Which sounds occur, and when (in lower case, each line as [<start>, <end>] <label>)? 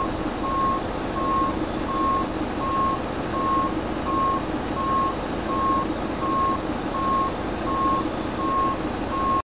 [0.00, 9.26] engine
[0.38, 0.85] beep
[1.05, 1.53] beep
[1.75, 2.20] beep
[2.50, 2.94] beep
[3.18, 3.64] beep
[3.98, 4.41] beep
[4.70, 5.13] beep
[5.46, 5.85] beep
[6.19, 6.68] beep
[6.90, 7.31] beep
[7.65, 8.06] beep
[8.36, 8.81] beep
[9.09, 9.26] beep